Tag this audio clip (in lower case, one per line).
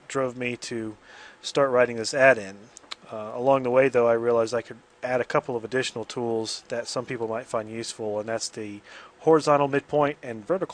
speech